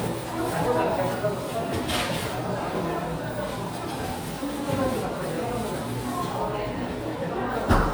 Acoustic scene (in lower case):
crowded indoor space